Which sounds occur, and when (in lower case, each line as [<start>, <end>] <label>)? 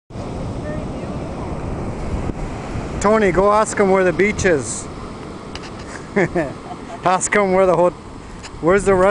[0.06, 9.10] ocean
[0.06, 9.10] wind
[0.54, 1.02] male speech
[2.99, 9.10] conversation
[3.01, 4.91] male speech
[4.13, 4.19] generic impact sounds
[5.49, 6.04] generic impact sounds
[6.09, 6.54] laughter
[6.65, 6.98] laughter
[6.99, 7.92] male speech
[7.66, 7.79] generic impact sounds
[8.33, 8.52] generic impact sounds